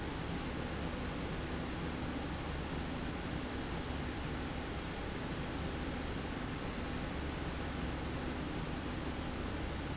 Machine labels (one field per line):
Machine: slide rail